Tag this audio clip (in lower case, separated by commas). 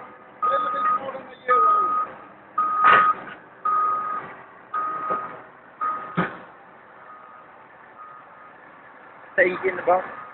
speech